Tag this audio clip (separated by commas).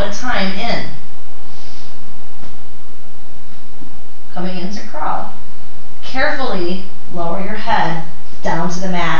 Speech